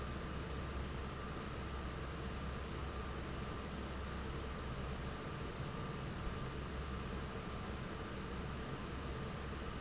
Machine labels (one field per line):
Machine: fan